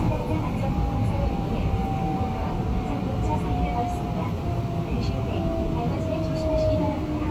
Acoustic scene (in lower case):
subway train